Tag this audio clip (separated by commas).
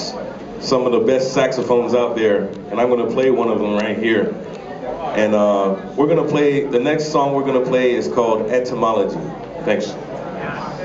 Speech